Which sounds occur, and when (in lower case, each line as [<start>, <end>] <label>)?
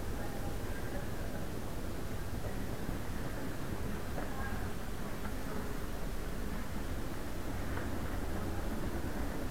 [0.00, 9.50] mechanisms